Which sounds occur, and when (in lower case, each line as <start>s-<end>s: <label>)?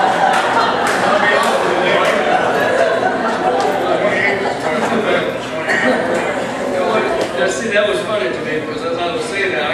0.0s-0.3s: laughter
0.0s-9.7s: crowd
0.0s-9.7s: speech babble
0.2s-0.4s: clapping
0.3s-0.7s: speech
0.8s-1.0s: clapping
1.2s-1.5s: male speech
1.3s-1.5s: clapping
1.8s-2.1s: male speech
1.9s-2.2s: clapping
2.2s-3.0s: laughter
3.2s-4.9s: laughter
3.9s-4.4s: male speech
4.6s-5.2s: male speech
5.5s-6.3s: male speech
5.6s-6.0s: laughter
6.7s-7.0s: woman speaking
7.3s-9.7s: male speech